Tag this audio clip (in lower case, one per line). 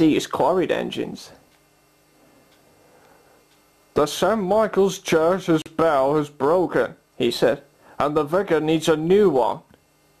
speech